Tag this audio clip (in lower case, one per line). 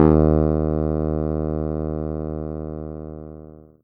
keyboard (musical)
music
musical instrument